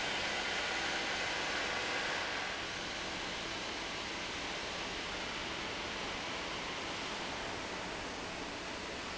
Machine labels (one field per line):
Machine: fan